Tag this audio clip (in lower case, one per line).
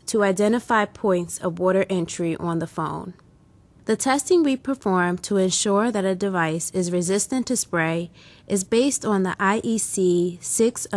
speech